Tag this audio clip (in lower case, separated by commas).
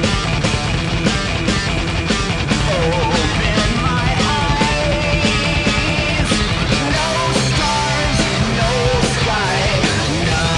grunge, punk rock, music